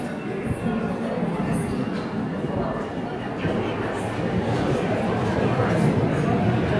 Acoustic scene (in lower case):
subway station